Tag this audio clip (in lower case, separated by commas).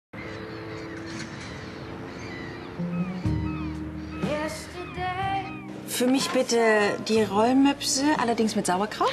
music, speech